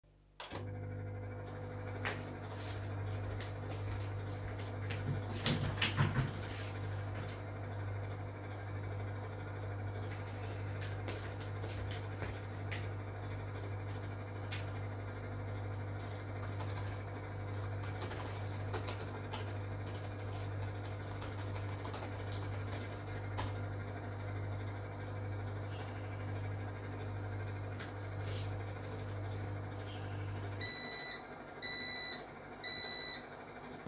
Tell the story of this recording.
I switch on the microwave to heat up my meal then go and open the window. Later on I come back, check on the laptop, type a response and sniff. The microwave is still running and emits a beeping when the set program is finished.